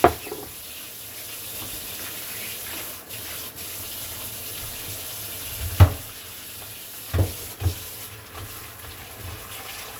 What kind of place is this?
kitchen